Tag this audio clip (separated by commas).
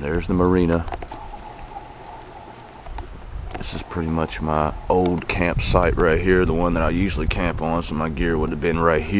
Wind noise (microphone), Speech